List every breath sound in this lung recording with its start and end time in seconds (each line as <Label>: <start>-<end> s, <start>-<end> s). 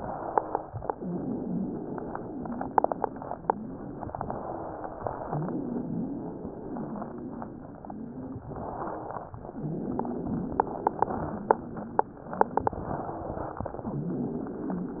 Inhalation: 0.00-0.72 s, 4.16-5.01 s, 8.46-9.32 s, 12.73-13.59 s
Exhalation: 0.95-4.00 s, 5.24-8.38 s, 9.51-12.25 s, 13.77-15.00 s
Wheeze: 0.00-0.72 s, 0.99-4.00 s, 4.16-5.01 s, 5.24-8.38 s, 8.46-9.32 s, 9.51-12.25 s, 12.73-13.59 s, 13.77-15.00 s